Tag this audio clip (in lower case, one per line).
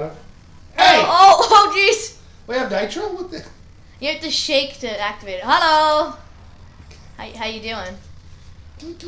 speech